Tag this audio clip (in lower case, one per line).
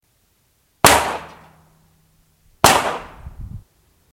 explosion
gunfire